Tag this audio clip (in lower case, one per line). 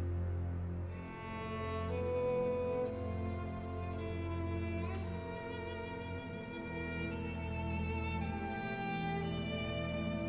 bowed string instrument
fiddle